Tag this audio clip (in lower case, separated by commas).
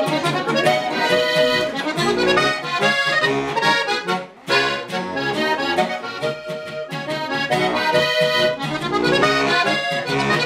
playing accordion, music, musical instrument, accordion